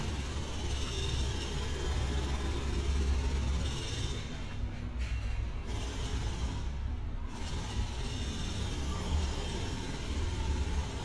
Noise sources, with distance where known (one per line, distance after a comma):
jackhammer, far